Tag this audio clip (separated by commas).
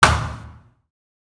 thud